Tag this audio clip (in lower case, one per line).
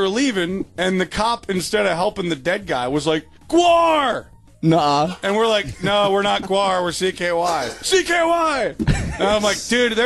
speech